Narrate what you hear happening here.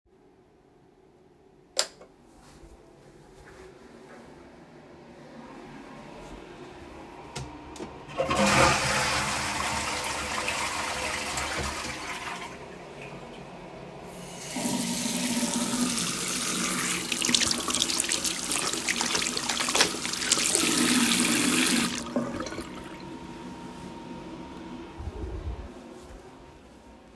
I entered the restroom and turned on the light. Afterwards I flushed the toilet, and furthermore proceeded to wash my hands in the sink. Then I dried my hands off with a towel.